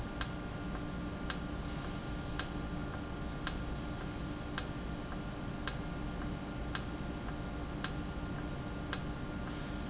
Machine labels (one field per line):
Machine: valve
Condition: normal